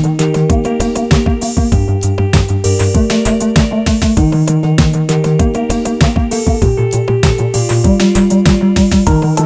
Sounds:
Music

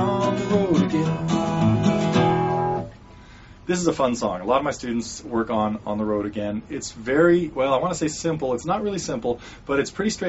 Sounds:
Music, Guitar, Speech

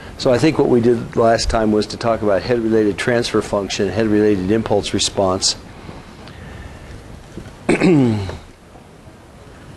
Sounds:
Speech

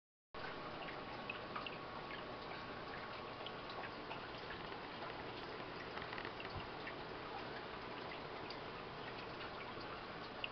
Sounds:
Bathtub (filling or washing)

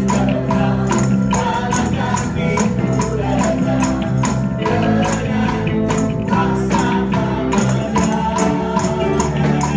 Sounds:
Rock and roll, Music

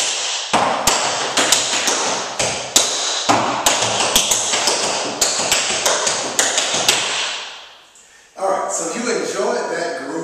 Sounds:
Speech, Tap

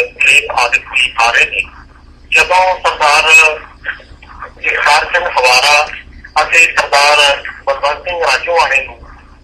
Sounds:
Speech

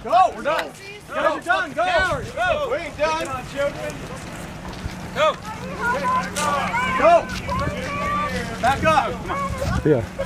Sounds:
Speech

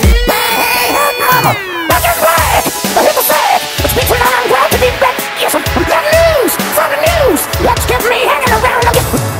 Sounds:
Music

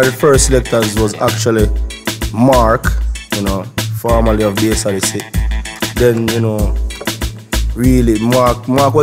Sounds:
Music, Speech

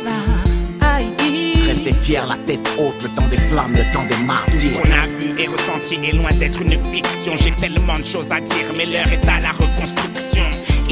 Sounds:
Music

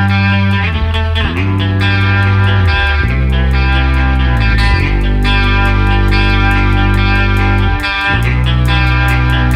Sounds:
Music

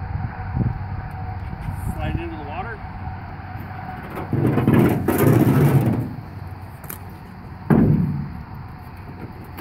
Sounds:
Speech

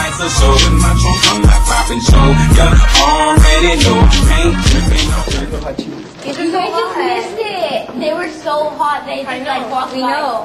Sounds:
Speech, Music

